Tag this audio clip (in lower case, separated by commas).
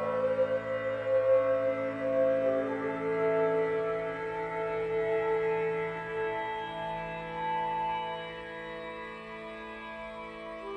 music, sad music